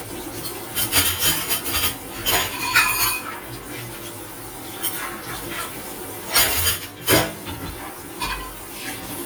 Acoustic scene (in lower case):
kitchen